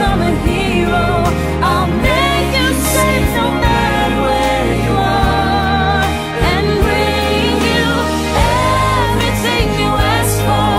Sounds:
Music, Pop music

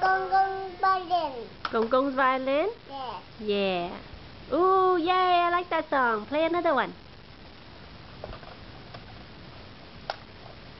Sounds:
Speech

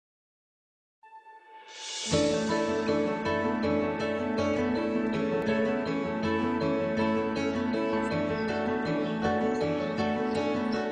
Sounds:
Animal

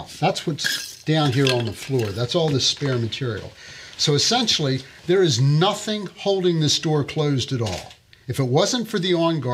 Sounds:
Speech

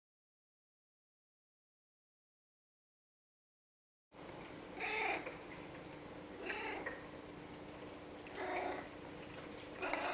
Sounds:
Cat, pets, Animal

